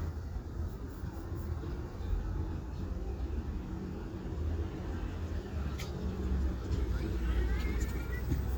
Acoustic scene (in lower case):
residential area